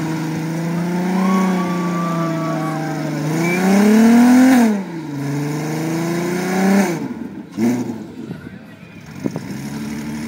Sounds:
outside, rural or natural, Vehicle, Speech, Car, Accelerating

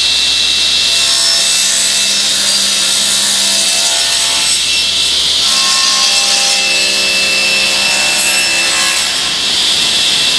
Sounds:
Rub, Sawing, Wood

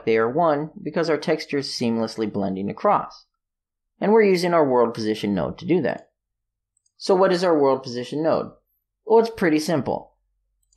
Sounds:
Speech

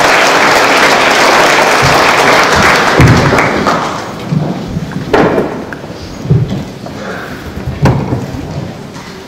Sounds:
Speech

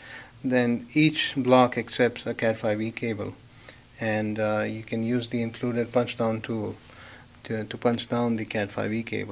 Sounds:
Speech

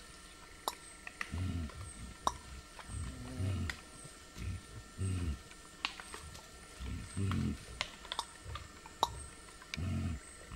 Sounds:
Animal, outside, rural or natural

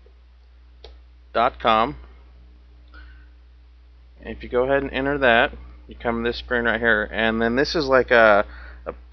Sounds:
Speech

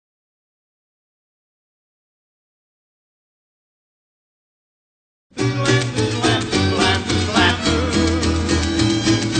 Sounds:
Music, Silence

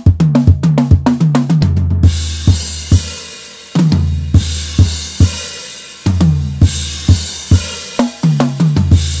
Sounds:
playing bass drum

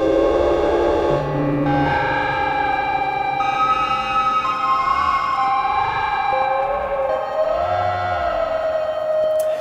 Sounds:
Musical instrument, Music, Synthesizer

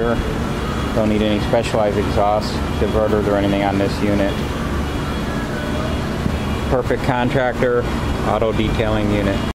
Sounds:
Speech

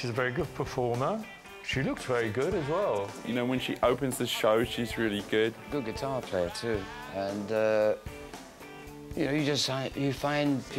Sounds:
Music, Speech

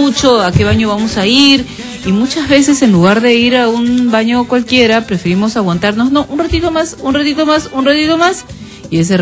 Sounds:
Radio, Music, Speech

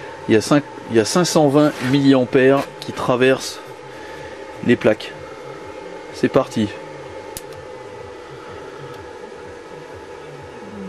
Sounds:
Speech

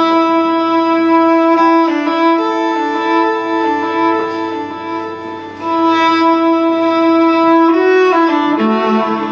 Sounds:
Music, Musical instrument, fiddle

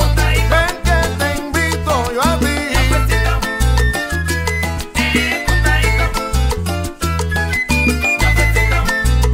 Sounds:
Music, Salsa music

